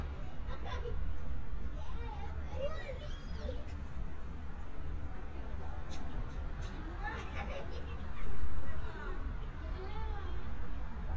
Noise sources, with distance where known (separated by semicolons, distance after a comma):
person or small group talking, near